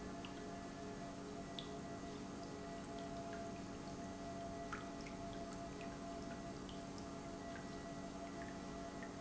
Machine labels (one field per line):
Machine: pump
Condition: normal